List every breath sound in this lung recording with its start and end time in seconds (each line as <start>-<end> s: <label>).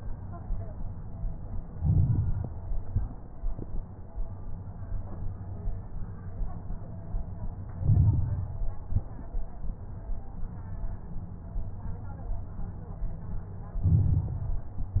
1.71-2.58 s: inhalation
1.71-2.58 s: crackles
2.85-3.27 s: exhalation
2.85-3.27 s: crackles
7.79-8.66 s: inhalation
7.79-8.66 s: crackles
8.85-9.27 s: exhalation
8.85-9.27 s: crackles
13.83-14.71 s: inhalation
13.83-14.71 s: crackles
14.74-15.00 s: exhalation
14.74-15.00 s: crackles